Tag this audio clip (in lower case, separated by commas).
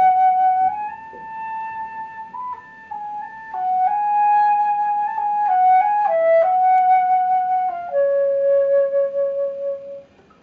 music, flute, musical instrument, wind instrument, playing flute